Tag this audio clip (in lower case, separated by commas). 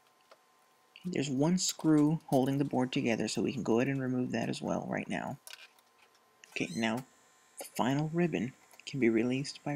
speech